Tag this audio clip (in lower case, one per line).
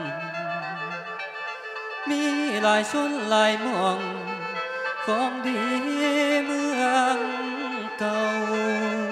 music